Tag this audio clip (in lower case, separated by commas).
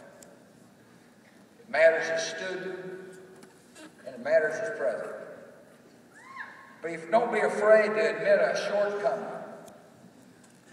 narration, speech, man speaking